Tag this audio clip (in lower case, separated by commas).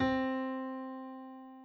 music, musical instrument, keyboard (musical), piano